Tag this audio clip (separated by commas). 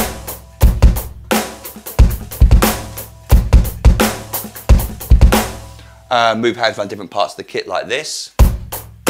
Musical instrument, Snare drum, Bass drum, Speech, Hi-hat, Drum kit, Music, Drum